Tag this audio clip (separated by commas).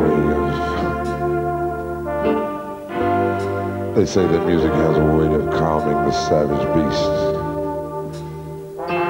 Brass instrument